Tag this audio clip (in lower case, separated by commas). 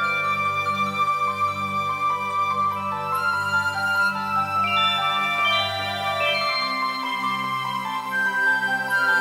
jingle (music), music